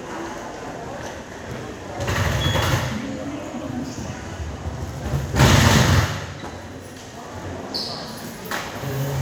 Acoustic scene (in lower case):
subway station